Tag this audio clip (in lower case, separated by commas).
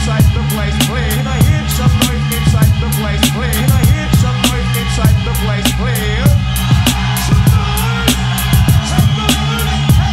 music